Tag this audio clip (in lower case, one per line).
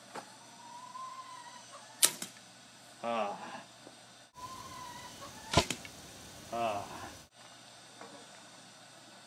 speech